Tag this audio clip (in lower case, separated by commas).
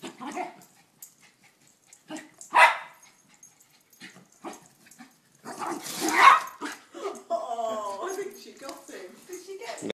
animal, pets, dog, bow-wow, speech